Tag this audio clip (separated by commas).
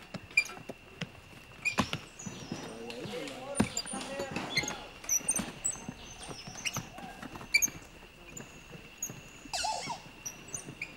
Speech, outside, rural or natural